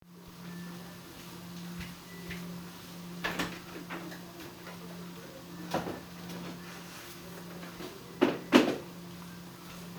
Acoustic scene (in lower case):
kitchen